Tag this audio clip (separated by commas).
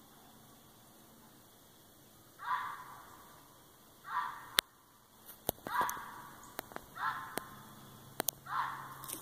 fox barking